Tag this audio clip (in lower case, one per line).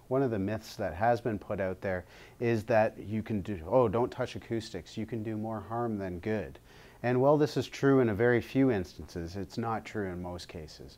speech